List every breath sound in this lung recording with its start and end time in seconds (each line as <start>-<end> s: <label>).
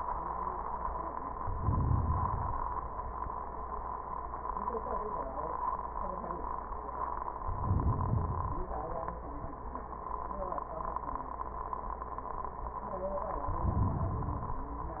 1.32-2.89 s: inhalation
7.35-8.76 s: inhalation
13.29-14.74 s: inhalation